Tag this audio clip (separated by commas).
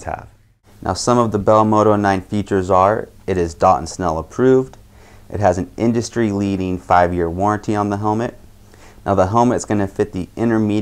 Speech